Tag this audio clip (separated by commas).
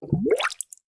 Liquid, Water, Gurgling